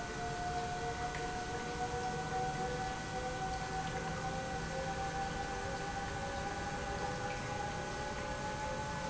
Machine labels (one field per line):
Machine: pump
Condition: normal